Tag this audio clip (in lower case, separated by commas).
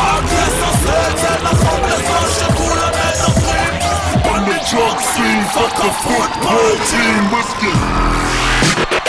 music, dubstep